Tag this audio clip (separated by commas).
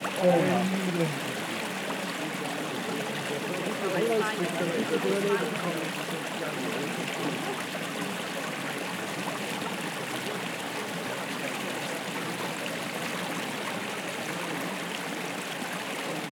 Chatter, Human group actions, Water, Stream